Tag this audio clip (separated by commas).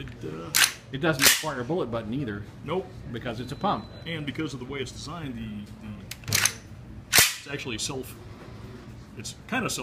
inside a small room, Speech